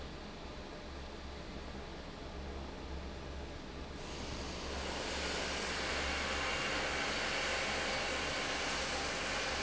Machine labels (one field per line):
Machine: fan